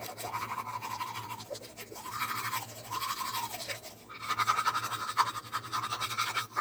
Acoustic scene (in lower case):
restroom